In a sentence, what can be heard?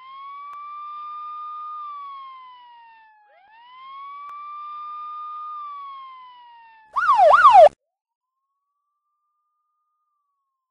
An emergency vehicle with siren driving